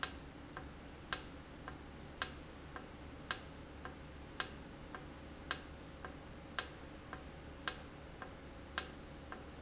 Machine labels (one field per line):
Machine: valve